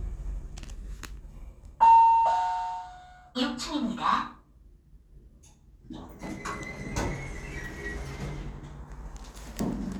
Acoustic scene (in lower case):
elevator